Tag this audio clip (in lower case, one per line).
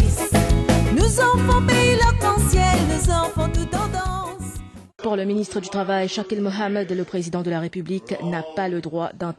speech
music
monologue
woman speaking